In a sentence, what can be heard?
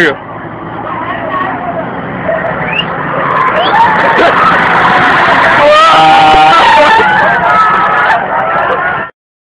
A man makes a sound followed by a screeching and siren while he screams fearfully